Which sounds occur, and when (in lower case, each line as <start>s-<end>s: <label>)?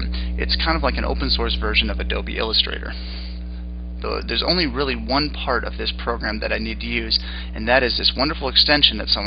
0.0s-0.1s: clicking
0.0s-0.4s: breathing
0.0s-9.2s: mechanisms
0.4s-2.9s: man speaking
2.9s-3.7s: breathing
4.0s-7.2s: man speaking
7.2s-7.5s: breathing
7.6s-9.2s: man speaking